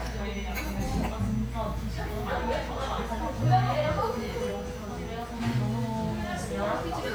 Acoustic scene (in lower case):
restaurant